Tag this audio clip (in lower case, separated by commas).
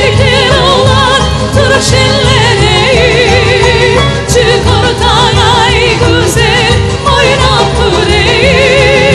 music, traditional music, happy music